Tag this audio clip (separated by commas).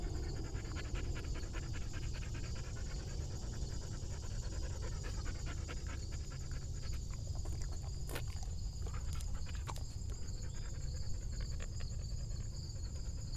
Animal, Domestic animals, Dog